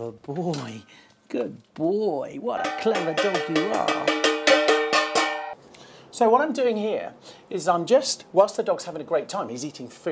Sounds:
Speech

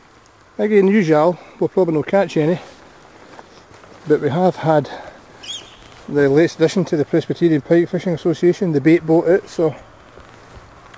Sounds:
Speech

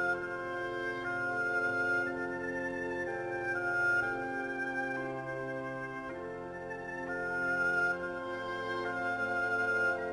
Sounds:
Musical instrument, Music, fiddle

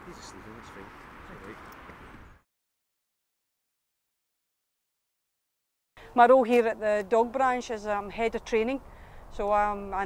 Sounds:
Speech

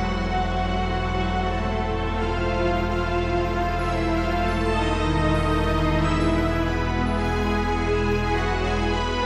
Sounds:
playing electronic organ

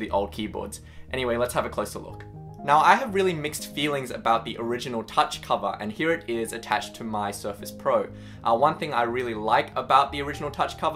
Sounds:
Speech, Music

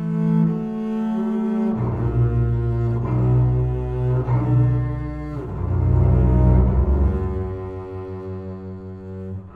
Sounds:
Bowed string instrument, Music, Musical instrument, Double bass, Cello, Classical music

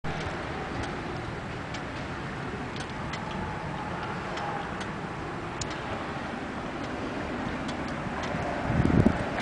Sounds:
Engine

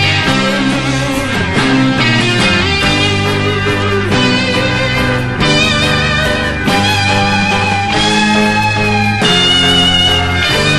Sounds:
Punk rock, Music

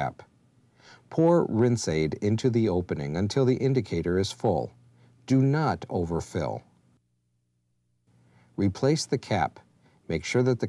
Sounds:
Speech

